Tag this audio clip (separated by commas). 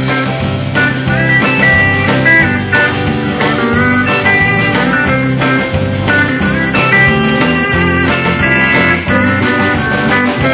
Music, Steel guitar